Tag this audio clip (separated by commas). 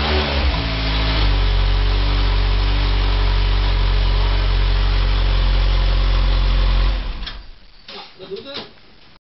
Engine, Idling, Vehicle, Speech